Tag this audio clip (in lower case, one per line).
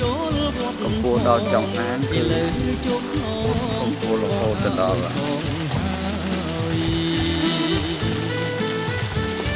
water